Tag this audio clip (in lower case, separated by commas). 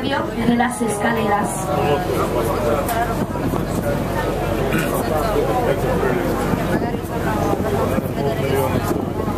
vehicle, speech